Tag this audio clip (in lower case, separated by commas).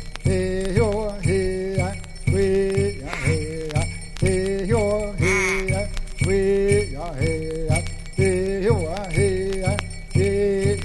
quack, music